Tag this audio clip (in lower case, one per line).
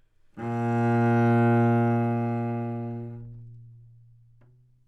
music
musical instrument
bowed string instrument